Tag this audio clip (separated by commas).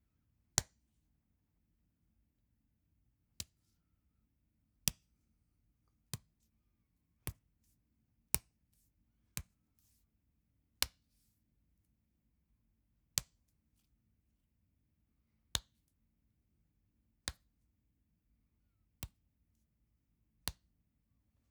Hands